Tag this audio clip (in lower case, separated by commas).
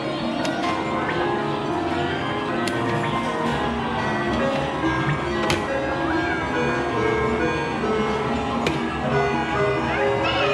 slot machine